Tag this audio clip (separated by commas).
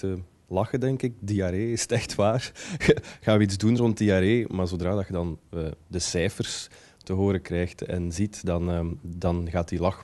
Speech